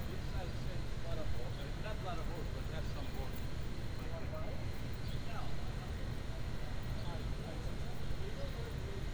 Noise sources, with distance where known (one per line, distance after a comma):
person or small group talking, near